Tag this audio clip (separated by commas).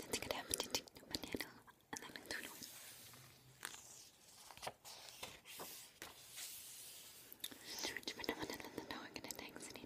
Whispering, people whispering, Speech